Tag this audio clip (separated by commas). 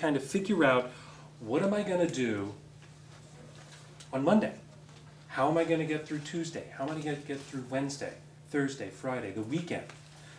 Speech